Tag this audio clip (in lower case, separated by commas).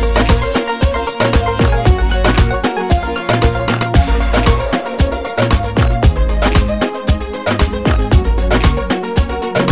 music, background music